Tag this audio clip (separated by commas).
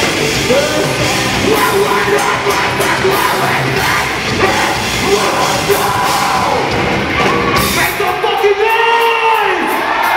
Speech, Music